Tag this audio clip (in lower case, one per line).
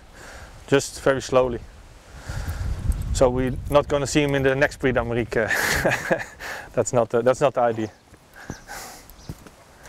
animal
speech
horse